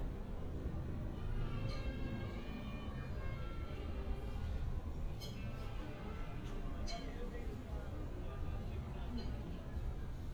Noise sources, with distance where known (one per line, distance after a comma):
music from a fixed source, far
person or small group talking